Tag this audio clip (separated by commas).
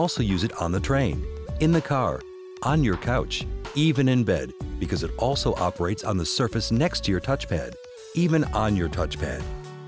Music, Speech